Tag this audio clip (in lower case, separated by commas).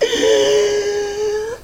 respiratory sounds, breathing